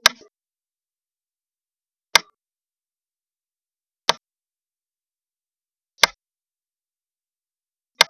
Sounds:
tap

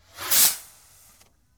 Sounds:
explosion
fireworks

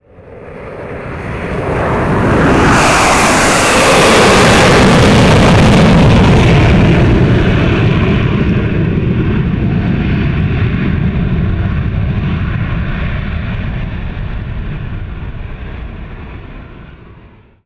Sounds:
fixed-wing aircraft
aircraft
vehicle

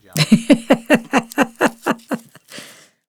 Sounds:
laughter
giggle
human voice

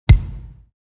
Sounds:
thud

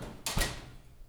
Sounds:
domestic sounds
slam
door

